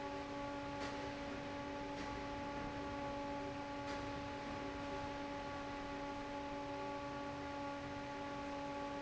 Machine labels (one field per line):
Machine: fan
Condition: normal